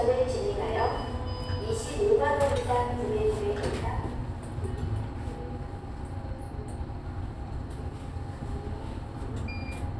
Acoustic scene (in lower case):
elevator